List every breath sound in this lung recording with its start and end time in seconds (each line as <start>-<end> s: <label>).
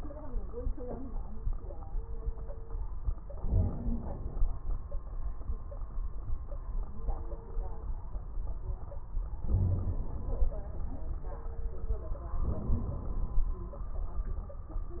3.44-4.42 s: inhalation
3.58-4.04 s: wheeze
9.48-10.01 s: wheeze
9.48-10.39 s: inhalation
12.43-13.49 s: inhalation